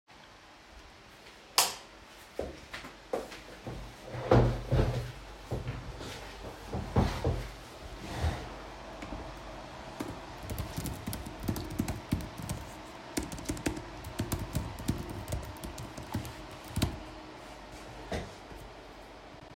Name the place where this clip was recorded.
bedroom